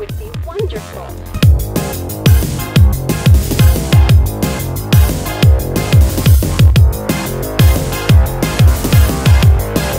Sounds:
dubstep, electronic music, speech, music

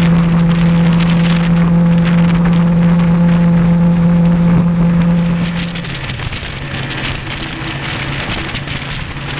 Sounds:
motorboat, vehicle, water vehicle

